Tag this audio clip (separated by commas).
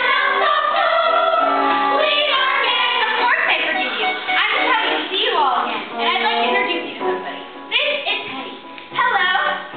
Music, Speech